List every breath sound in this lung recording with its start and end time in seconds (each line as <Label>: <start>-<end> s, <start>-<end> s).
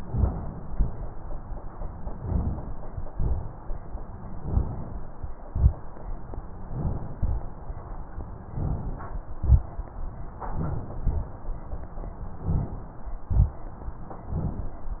Inhalation: 0.00-0.69 s, 2.22-2.75 s, 4.40-4.95 s, 6.62-7.16 s, 8.52-9.22 s, 10.49-11.03 s, 12.39-12.94 s, 14.35-14.91 s
Exhalation: 0.70-1.10 s, 3.09-3.65 s, 5.50-5.90 s, 7.17-7.61 s, 9.39-9.89 s, 11.02-11.35 s, 13.32-13.64 s
Rhonchi: 0.04-0.34 s, 3.11-3.51 s, 6.72-7.02 s, 12.43-12.73 s